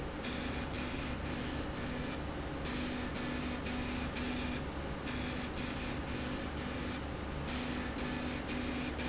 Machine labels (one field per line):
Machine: slide rail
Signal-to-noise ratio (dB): -6 dB